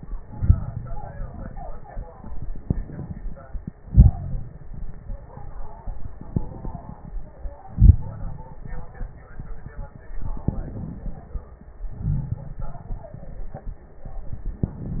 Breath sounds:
Inhalation: 0.17-0.74 s, 2.61-3.59 s, 6.33-7.16 s, 10.52-11.61 s
Exhalation: 3.78-4.69 s, 7.61-8.93 s, 11.97-13.15 s
Crackles: 0.17-0.74 s, 2.61-3.59 s, 3.78-4.69 s, 7.61-8.93 s, 11.97-13.15 s

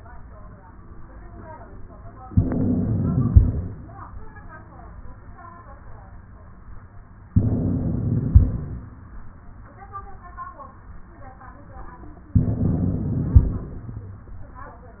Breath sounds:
Inhalation: 2.32-3.70 s, 7.35-8.74 s, 12.35-13.74 s
Wheeze: 2.32-3.70 s, 7.35-8.74 s, 12.35-13.74 s

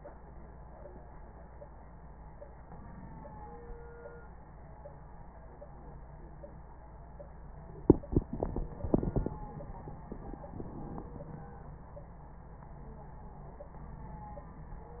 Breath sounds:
Inhalation: 2.66-3.80 s, 10.52-11.53 s

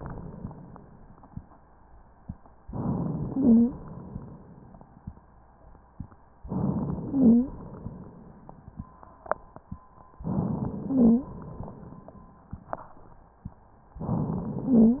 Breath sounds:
Inhalation: 2.66-4.13 s, 6.41-7.52 s, 10.24-11.31 s, 14.03-15.00 s
Wheeze: 3.31-3.75 s, 7.08-7.52 s, 10.87-11.31 s, 14.65-15.00 s

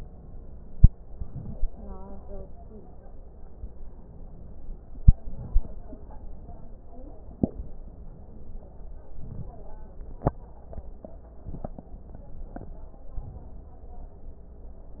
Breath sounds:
Inhalation: 0.96-1.71 s, 4.84-5.94 s, 9.08-9.61 s, 13.13-13.63 s
Crackles: 0.96-1.71 s, 4.84-5.94 s, 9.08-9.61 s, 13.13-13.63 s

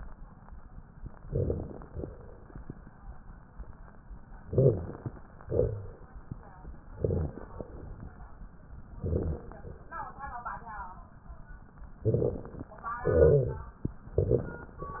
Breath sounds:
Inhalation: 1.23-1.90 s, 4.44-5.11 s, 6.87-7.53 s, 9.01-9.68 s, 12.07-12.73 s, 14.17-14.84 s
Exhalation: 1.96-2.62 s, 5.45-6.11 s, 7.61-8.27 s, 13.05-13.72 s
Crackles: 1.23-1.90 s, 1.96-2.62 s, 4.44-5.11 s, 5.45-6.11 s, 6.87-7.53 s, 7.61-8.27 s, 9.01-9.68 s, 12.07-12.73 s, 13.05-13.72 s, 14.17-14.84 s

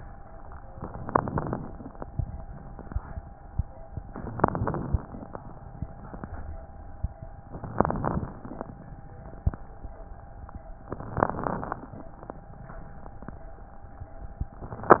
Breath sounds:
Inhalation: 0.71-1.57 s, 4.38-5.04 s, 7.49-8.31 s
Crackles: 0.69-1.55 s, 4.38-5.04 s, 7.49-8.31 s, 10.90-11.84 s

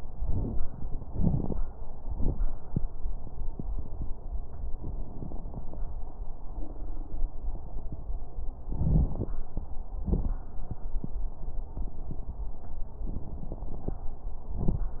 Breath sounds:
Inhalation: 0.10-0.62 s, 8.71-9.33 s
Exhalation: 1.03-1.55 s, 10.04-10.38 s
Crackles: 0.10-0.62 s, 1.03-1.55 s, 8.71-9.33 s, 10.04-10.38 s

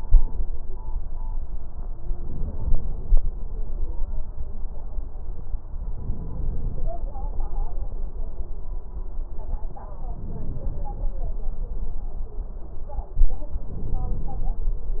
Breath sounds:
Inhalation: 2.06-3.31 s, 5.95-6.99 s, 10.08-11.12 s, 13.72-14.76 s
Crackles: 2.04-3.27 s, 10.06-11.11 s, 13.72-14.76 s

